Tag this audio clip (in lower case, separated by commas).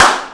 hands, clapping